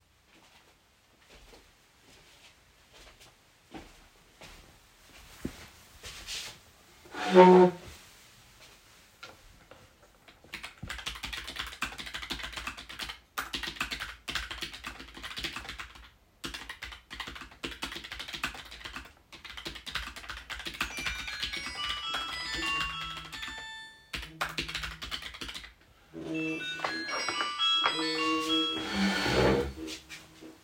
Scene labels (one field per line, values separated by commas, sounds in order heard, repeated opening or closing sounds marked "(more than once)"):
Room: office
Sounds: footsteps, keyboard typing, phone ringing